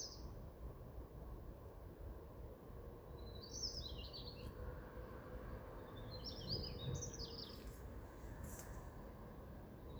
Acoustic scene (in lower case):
park